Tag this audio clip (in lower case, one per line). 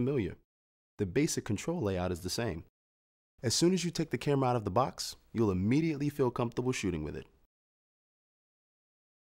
speech